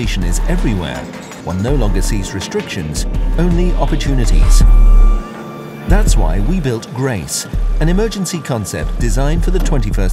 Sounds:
speech, music

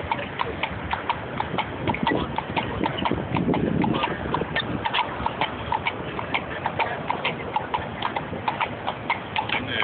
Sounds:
speech, clip-clop, horse

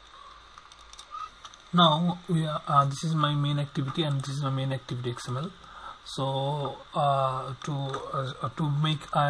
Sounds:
speech

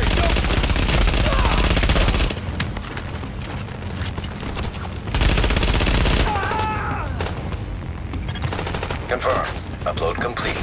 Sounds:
music, speech

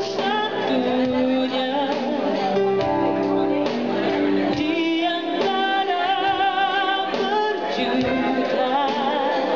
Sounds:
music, speech

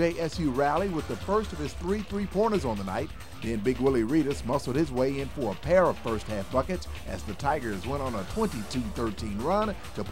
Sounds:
music, speech

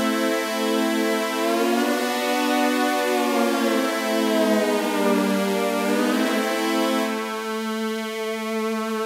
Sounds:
music, sampler

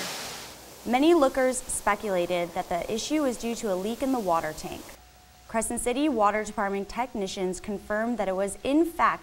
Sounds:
waterfall, speech

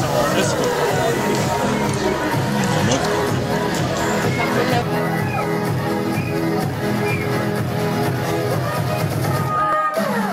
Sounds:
speech, music

